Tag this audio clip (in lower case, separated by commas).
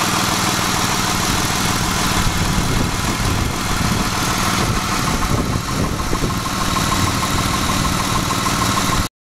vehicle